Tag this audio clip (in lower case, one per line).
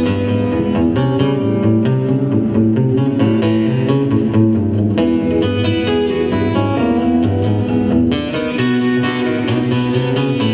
music